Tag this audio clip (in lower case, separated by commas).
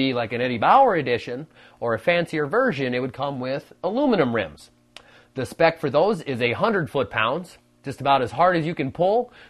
speech